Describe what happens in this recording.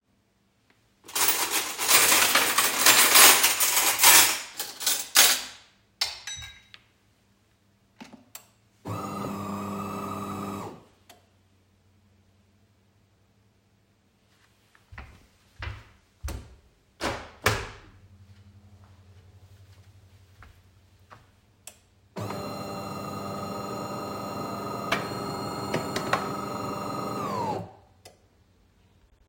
I unloaded the dishwasher, started the coffee-machine, went to the window and open it, in the background the coffee-machine is still heating up.